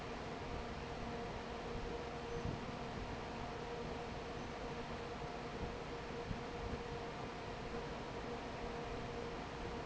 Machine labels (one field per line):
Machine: fan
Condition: normal